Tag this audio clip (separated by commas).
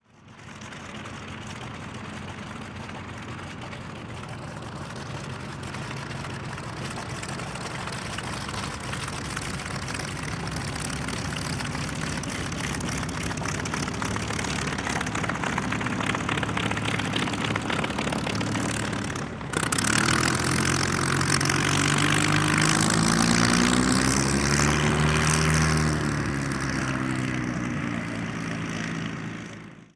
Vehicle, Aircraft